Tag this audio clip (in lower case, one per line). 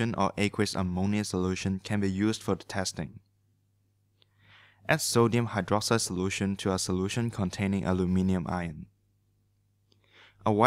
speech
inside a small room